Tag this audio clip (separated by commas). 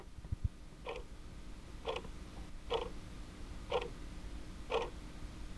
Mechanisms, Tick-tock, Clock